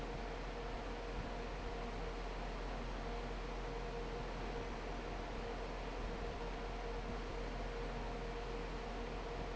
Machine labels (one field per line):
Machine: fan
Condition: normal